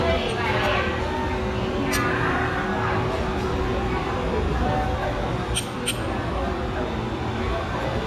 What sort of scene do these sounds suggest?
restaurant